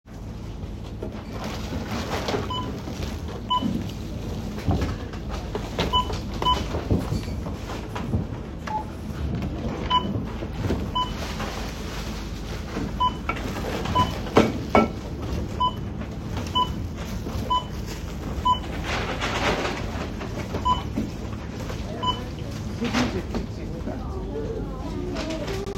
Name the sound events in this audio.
bell ringing